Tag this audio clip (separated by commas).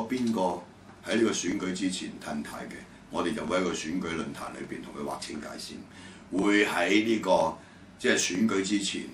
Speech